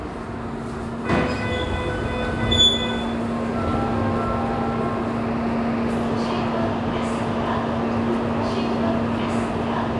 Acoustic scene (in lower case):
subway station